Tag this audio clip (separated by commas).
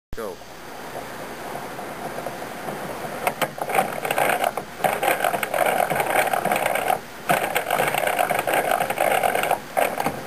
inside a small room, Speech, Wood